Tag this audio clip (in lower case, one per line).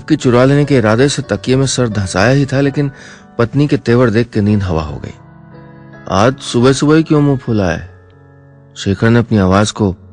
speech
music